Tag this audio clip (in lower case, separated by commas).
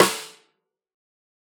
percussion, musical instrument, snare drum, music, drum